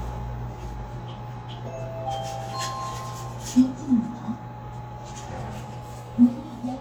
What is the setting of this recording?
elevator